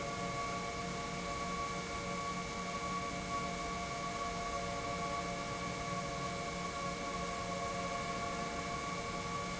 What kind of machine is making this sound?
pump